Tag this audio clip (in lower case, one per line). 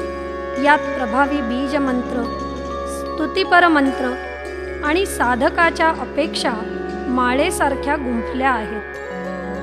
music
mantra
speech